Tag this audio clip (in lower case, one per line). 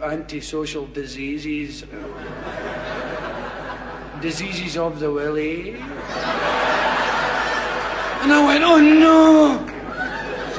speech